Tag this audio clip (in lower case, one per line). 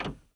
printer
mechanisms